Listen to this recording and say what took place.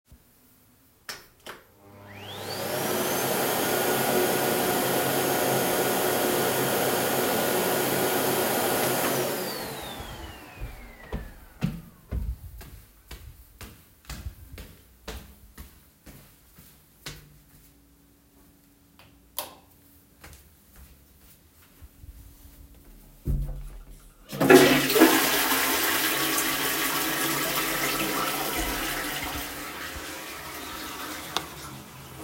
I vacuum cleaned the hallway and walked into the bathroom, where I flushed the toilet.